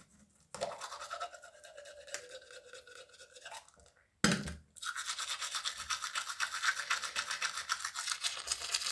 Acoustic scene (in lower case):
restroom